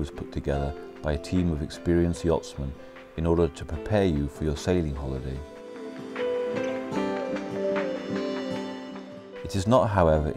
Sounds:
Speech, Music

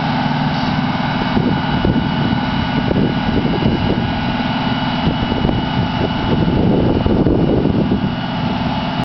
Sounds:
Vehicle

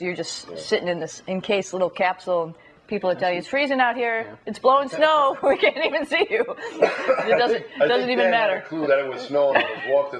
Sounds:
inside a small room, Speech

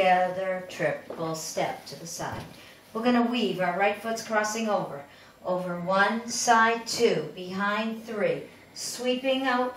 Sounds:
Speech

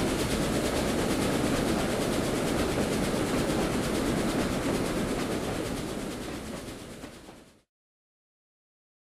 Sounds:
train wagon

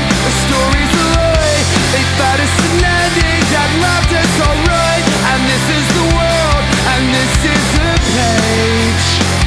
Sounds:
Music

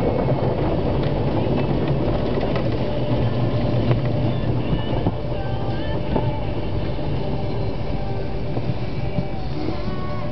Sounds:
Car, Music

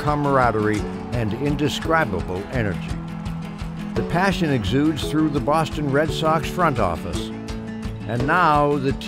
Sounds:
Music, Speech

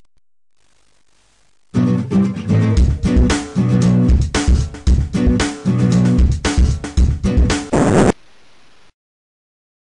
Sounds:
Strum, Plucked string instrument, Music, Guitar, Musical instrument

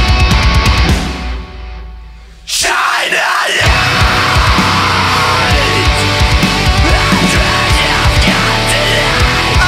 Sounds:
Music, Rhythm and blues, Blues

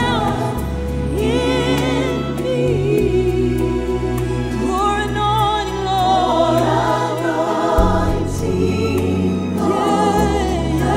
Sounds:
Music, Gospel music

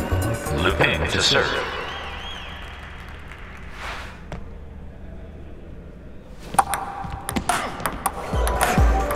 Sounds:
playing table tennis

